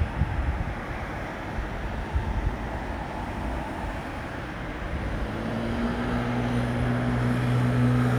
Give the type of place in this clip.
street